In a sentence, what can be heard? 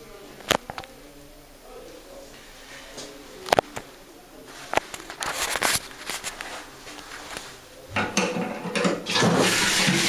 Clicking noises and a toilet flushing